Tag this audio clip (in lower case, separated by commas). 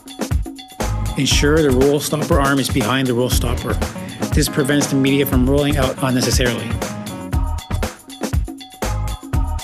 speech, music